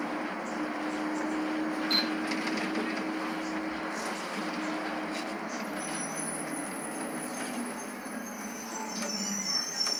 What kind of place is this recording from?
bus